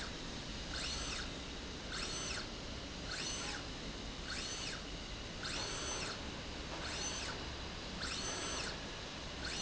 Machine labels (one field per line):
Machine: slide rail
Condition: normal